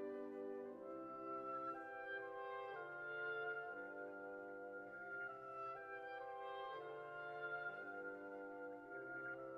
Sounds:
musical instrument
violin
music

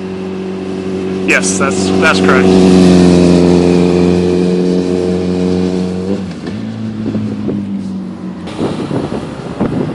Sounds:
speech

